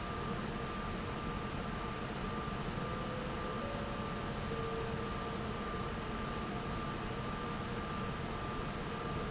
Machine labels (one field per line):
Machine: fan